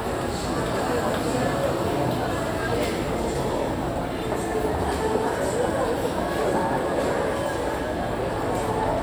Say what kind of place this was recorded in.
crowded indoor space